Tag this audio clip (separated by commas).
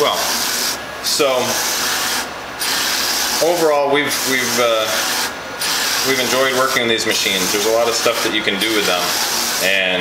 Speech, Printer